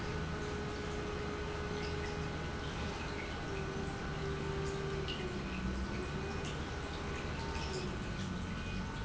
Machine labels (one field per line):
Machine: pump